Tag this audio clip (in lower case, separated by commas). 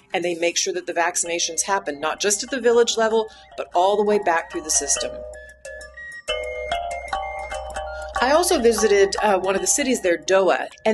music, speech, glockenspiel